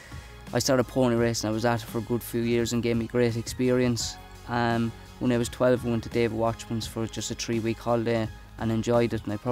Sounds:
speech
music

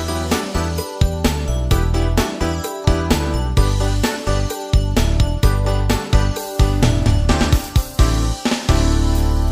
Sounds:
music
rhythm and blues

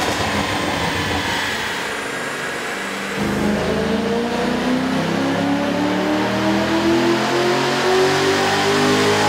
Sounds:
vehicle
inside a large room or hall
car

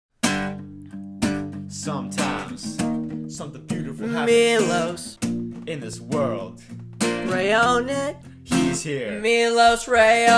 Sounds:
music

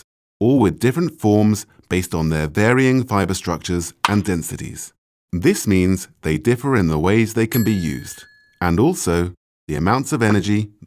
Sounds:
speech

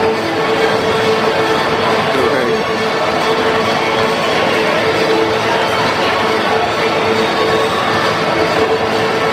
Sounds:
speech
music

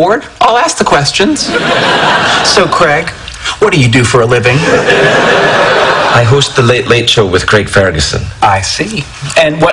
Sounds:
speech

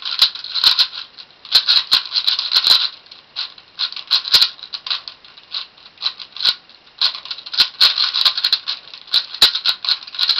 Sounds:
inside a small room

